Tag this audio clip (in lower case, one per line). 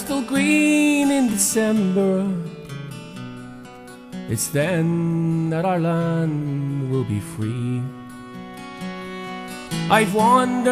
music